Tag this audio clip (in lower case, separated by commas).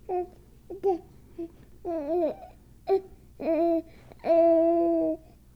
speech, human voice